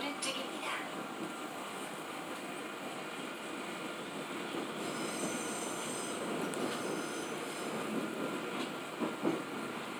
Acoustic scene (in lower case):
subway train